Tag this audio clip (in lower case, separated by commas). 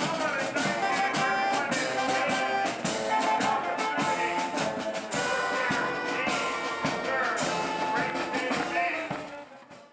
steelpan